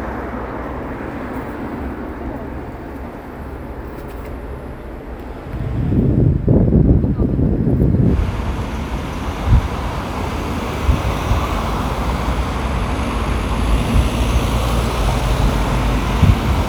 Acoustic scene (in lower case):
street